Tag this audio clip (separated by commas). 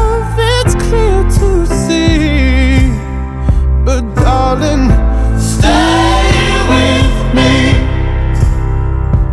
male singing